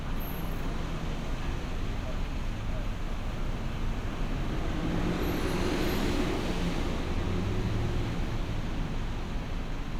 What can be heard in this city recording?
large-sounding engine